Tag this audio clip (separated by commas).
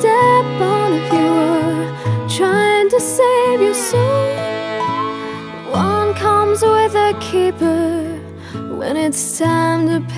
Music